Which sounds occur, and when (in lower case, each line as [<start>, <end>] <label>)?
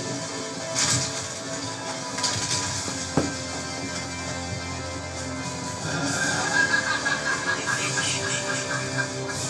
[0.01, 9.45] background noise
[0.03, 9.45] music
[0.74, 1.13] generic impact sounds
[2.13, 2.69] generic impact sounds
[3.12, 3.30] generic impact sounds
[5.81, 9.45] laughter